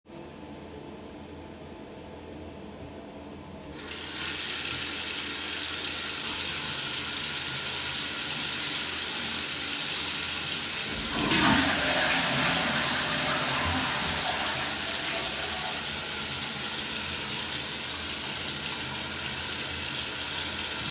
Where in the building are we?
bathroom